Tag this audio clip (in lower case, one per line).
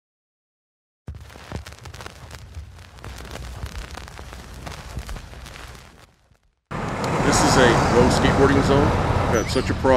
speech